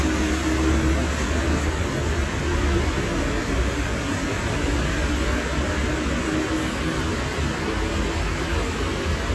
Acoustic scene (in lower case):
street